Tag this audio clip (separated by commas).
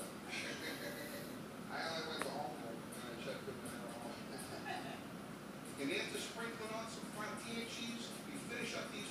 Speech